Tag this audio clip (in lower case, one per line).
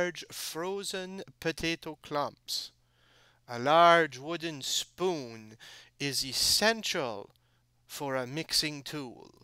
narration